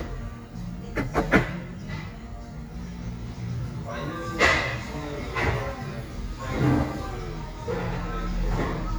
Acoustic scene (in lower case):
cafe